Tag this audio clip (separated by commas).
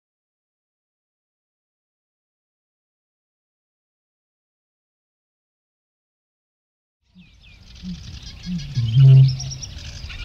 outside, rural or natural